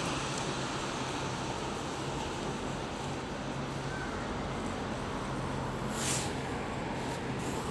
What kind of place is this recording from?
street